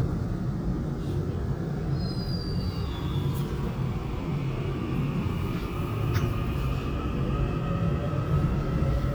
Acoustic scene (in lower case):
subway train